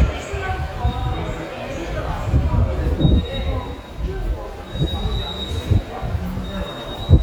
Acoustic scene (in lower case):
subway station